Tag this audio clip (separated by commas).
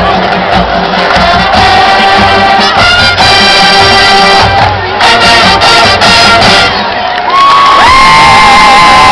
Cheering, Music, outside, urban or man-made